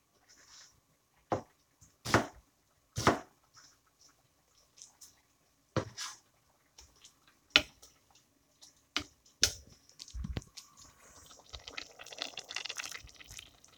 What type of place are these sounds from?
kitchen